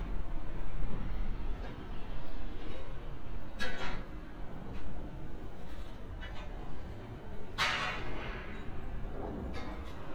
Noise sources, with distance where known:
non-machinery impact

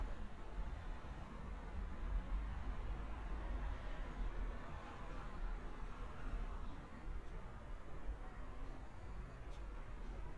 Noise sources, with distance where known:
background noise

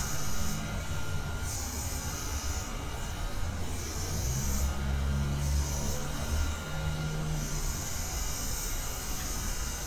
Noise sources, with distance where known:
medium-sounding engine; engine of unclear size; small or medium rotating saw

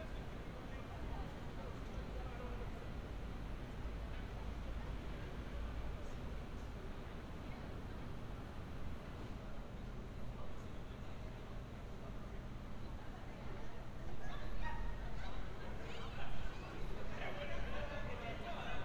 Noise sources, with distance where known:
person or small group talking

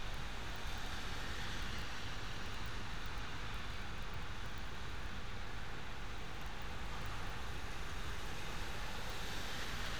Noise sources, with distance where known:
engine of unclear size

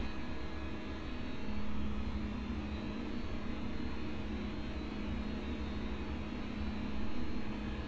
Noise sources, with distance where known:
engine of unclear size

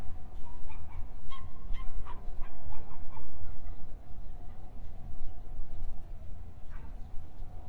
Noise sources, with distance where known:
dog barking or whining, far

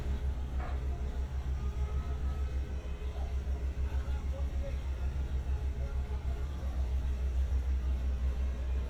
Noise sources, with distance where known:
unidentified human voice, far

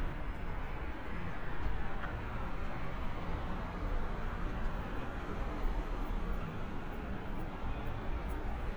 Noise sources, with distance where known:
medium-sounding engine

